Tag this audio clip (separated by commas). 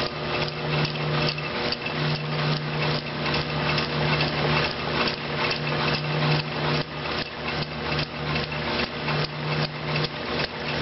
Engine